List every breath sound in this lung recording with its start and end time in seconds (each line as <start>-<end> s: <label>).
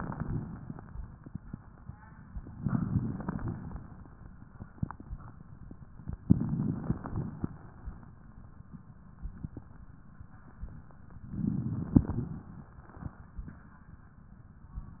2.60-3.44 s: inhalation
2.60-3.44 s: crackles
3.45-4.29 s: exhalation
3.45-4.29 s: crackles
6.20-7.00 s: inhalation
6.20-7.00 s: crackles
7.02-7.82 s: exhalation
7.02-7.82 s: crackles
11.27-12.07 s: inhalation
11.27-12.07 s: crackles
12.10-12.71 s: exhalation
12.10-12.71 s: crackles